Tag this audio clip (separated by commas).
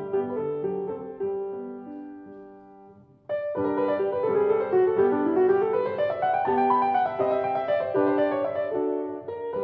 Music